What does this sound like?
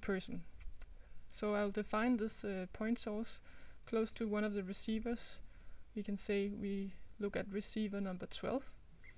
A man speaks followed by a few quiet clicks of a computer mouse